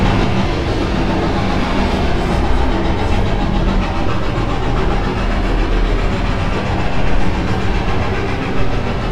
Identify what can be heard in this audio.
hoe ram